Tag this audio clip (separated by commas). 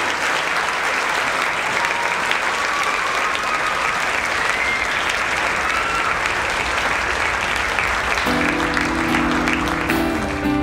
Music, Applause, people clapping